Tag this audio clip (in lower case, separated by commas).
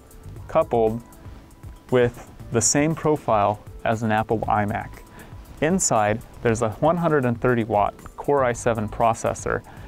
music, speech